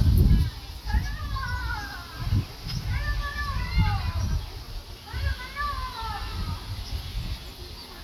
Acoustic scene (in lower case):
park